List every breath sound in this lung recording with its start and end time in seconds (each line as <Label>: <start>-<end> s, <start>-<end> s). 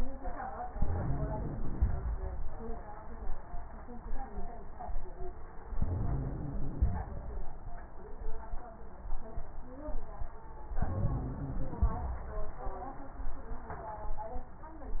Inhalation: 0.70-1.90 s, 5.78-6.97 s, 10.79-11.99 s
Wheeze: 0.70-1.90 s, 5.78-6.97 s, 10.79-11.99 s